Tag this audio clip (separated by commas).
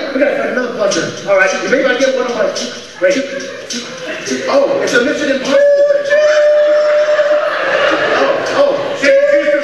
Speech, Music, Male speech